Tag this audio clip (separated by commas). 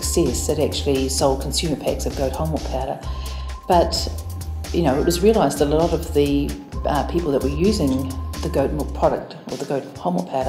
Speech, Music